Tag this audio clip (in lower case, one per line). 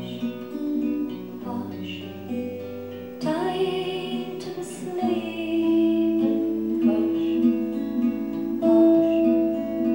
music